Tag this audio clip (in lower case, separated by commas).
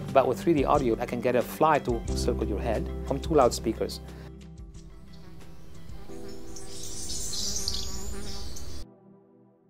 bird call, tweet, bird